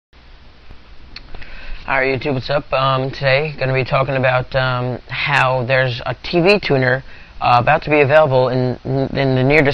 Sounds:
man speaking
speech

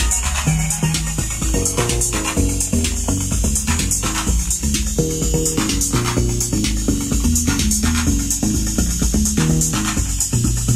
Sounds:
playing synthesizer

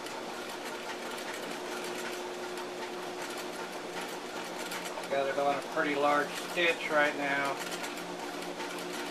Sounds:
sewing machine
speech

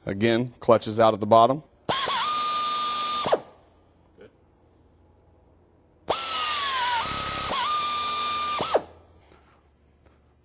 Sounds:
speech
drill
tools

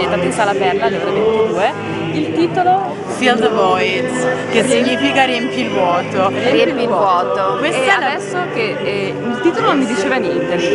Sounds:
music
speech

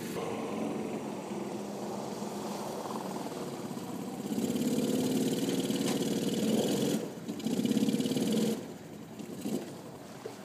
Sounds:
car
vehicle

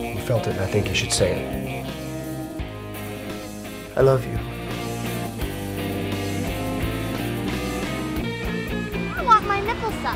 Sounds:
music
speech

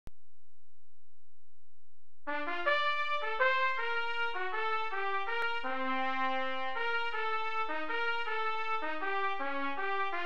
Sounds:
trumpet
music
trombone
brass instrument

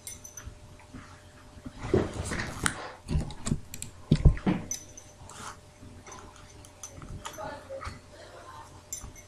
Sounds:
speech

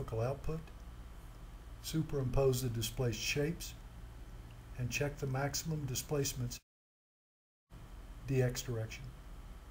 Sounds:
speech

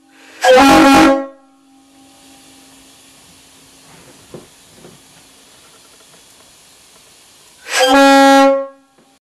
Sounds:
car horn

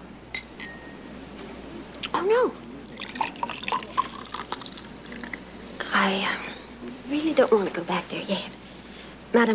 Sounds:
speech
inside a small room

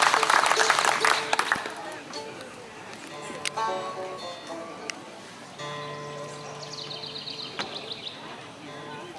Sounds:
music
speech

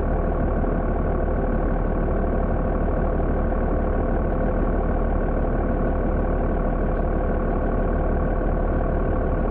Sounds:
vehicle

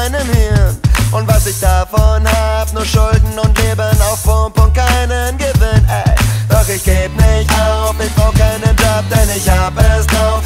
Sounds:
music

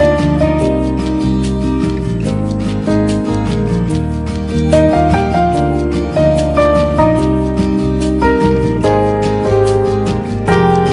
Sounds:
soul music
music

